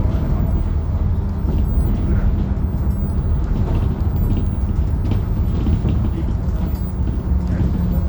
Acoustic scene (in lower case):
bus